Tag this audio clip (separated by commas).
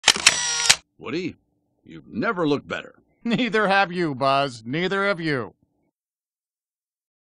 Speech